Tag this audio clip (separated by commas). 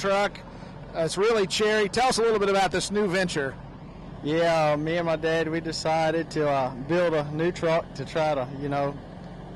Speech